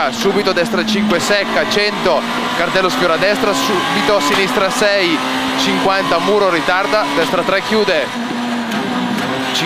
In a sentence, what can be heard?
A speeding car passing by and a man talking